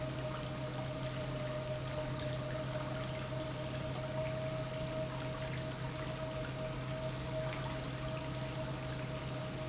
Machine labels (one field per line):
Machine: pump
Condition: normal